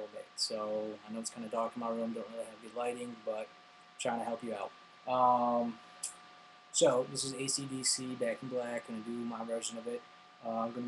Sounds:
Speech

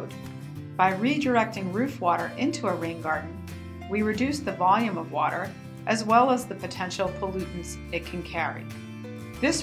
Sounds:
Speech, Music

